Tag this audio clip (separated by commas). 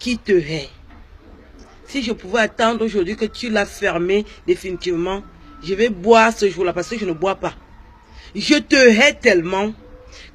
Speech